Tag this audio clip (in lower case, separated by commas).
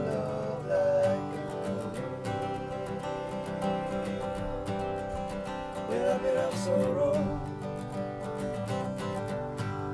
music